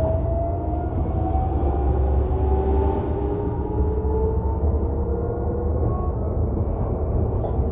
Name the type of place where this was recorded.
bus